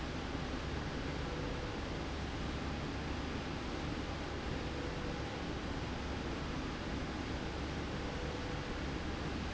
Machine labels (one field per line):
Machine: slide rail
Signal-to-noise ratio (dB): -6 dB